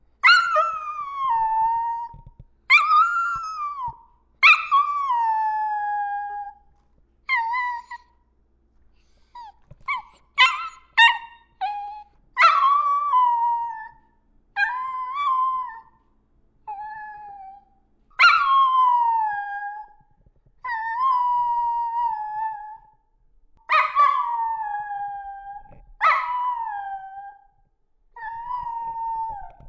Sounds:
Dog, Animal, Domestic animals

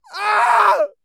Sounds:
Screaming, Yell, Human voice, Shout

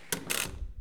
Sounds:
Domestic sounds, Door

